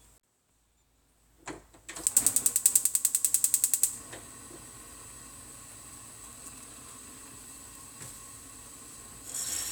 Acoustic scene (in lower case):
kitchen